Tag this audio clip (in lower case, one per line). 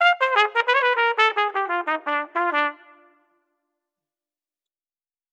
musical instrument
music
brass instrument